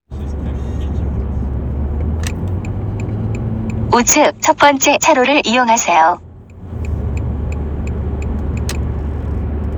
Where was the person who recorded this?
in a car